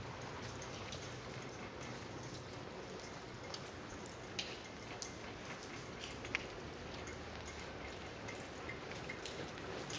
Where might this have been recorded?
in a residential area